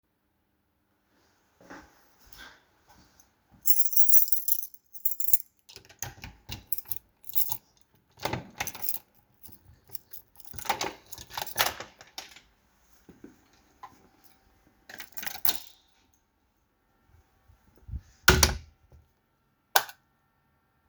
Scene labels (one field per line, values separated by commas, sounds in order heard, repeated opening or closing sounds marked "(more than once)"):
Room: hallway, living room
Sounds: footsteps, keys, door (more than once), light switch